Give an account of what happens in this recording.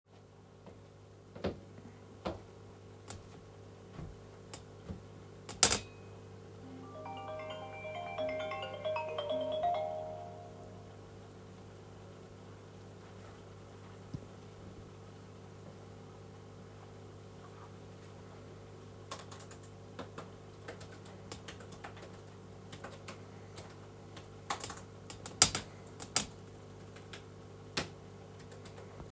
Walking towards the laptop as the phone rings, then sitting down and starting to type.